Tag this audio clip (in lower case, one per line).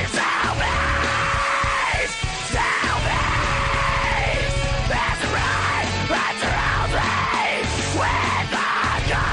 music
exciting music